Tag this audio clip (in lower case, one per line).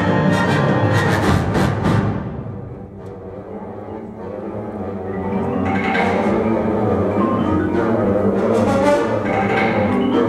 music
orchestra
timpani